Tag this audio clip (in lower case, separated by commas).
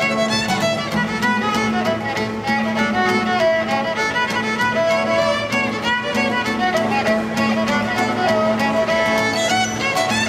plucked string instrument, music, musical instrument, guitar